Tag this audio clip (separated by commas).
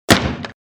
Explosion, gunfire